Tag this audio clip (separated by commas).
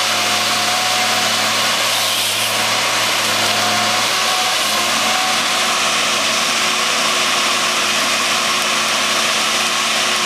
Tools, Power tool